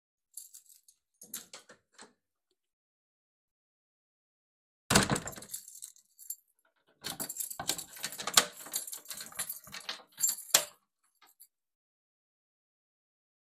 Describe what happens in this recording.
I took keychain out of my pocket and opened the enterence door.